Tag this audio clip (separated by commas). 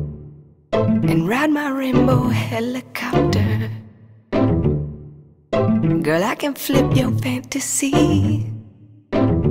Music